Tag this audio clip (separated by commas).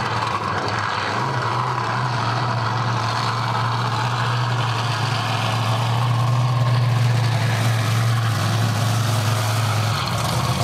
Vehicle, Truck